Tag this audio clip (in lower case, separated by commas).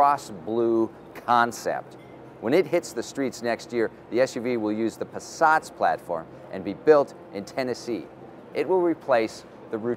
speech